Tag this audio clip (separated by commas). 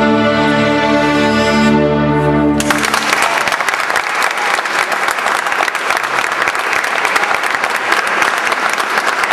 Musical instrument, Bowed string instrument, Orchestra, Applause, Music, fiddle, people clapping, Cello, Classical music